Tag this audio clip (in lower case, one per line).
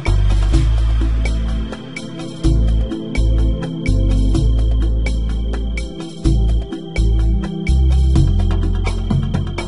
music